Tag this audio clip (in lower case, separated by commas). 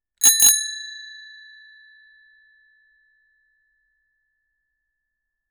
bell, alarm, bicycle bell, bicycle, vehicle